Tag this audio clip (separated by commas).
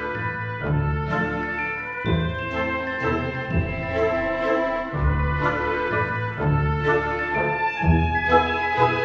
Music, Sampler